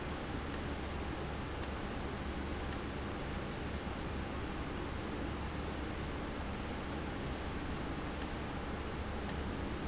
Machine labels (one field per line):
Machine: valve